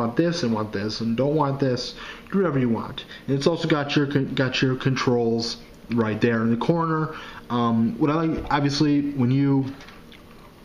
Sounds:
speech

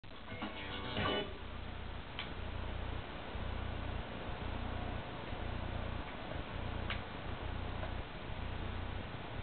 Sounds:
music

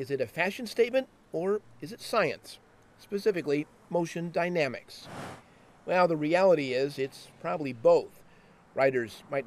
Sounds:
speech

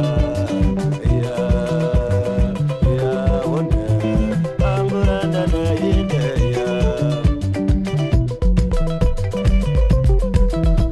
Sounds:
music
salsa music

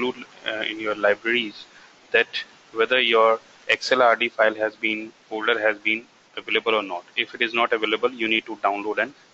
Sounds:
speech

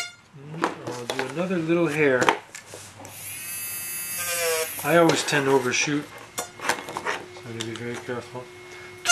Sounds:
speech

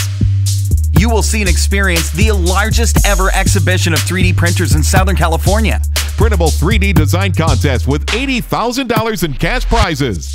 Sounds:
music
speech

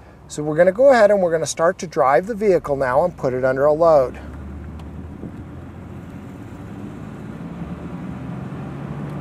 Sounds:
speech

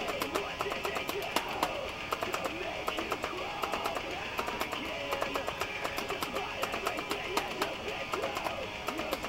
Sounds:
guitar
musical instrument
music
plucked string instrument

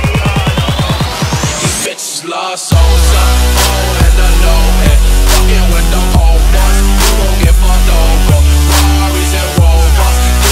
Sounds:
music

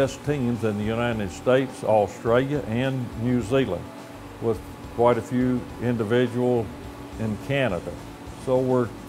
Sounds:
speech
music

